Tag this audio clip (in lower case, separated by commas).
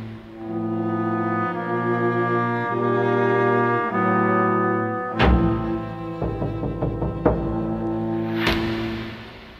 music